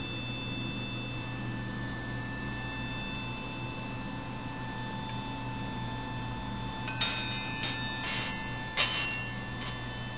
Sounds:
chime, wind chime

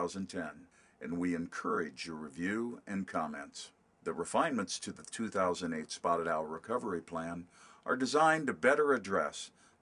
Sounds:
speech

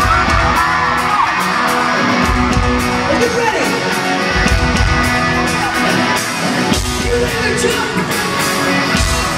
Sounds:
speech, music

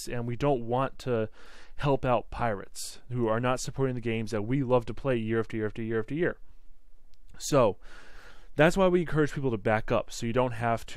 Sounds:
speech

